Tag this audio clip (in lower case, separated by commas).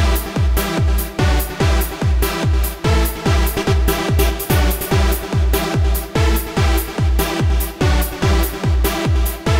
music, techno